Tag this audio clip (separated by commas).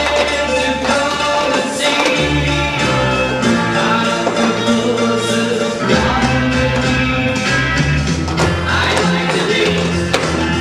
Tap, Music